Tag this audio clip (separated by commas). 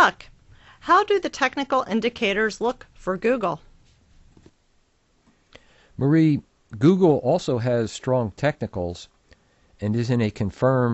Speech